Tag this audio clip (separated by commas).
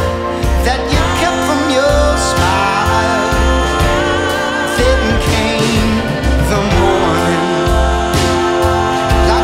Music